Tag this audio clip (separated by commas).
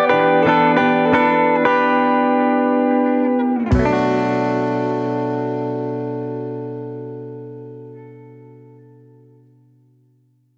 Music, Effects unit